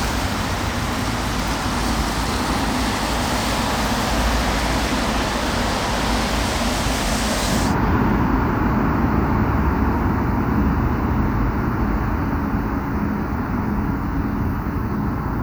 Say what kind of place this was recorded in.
street